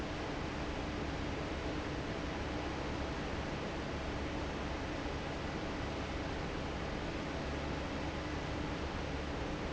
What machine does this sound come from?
fan